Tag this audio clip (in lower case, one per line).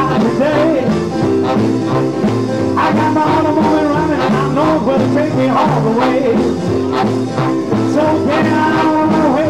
music